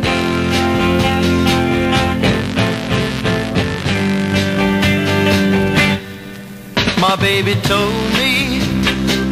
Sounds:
Psychedelic rock, Music

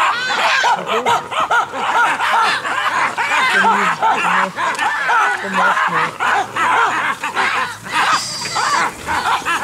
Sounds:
roaring cats, Animal

